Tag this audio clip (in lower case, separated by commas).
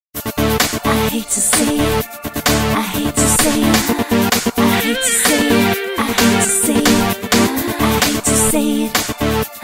rhythm and blues, music